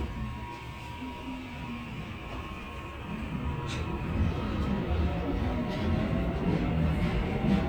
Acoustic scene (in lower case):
subway train